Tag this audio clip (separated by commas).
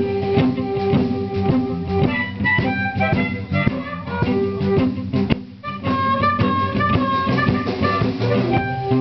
playing harmonica